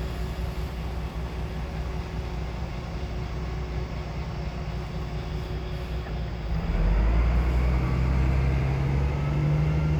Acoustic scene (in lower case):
street